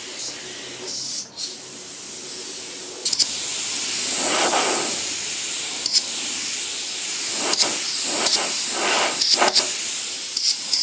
An item is sprayed by compressed air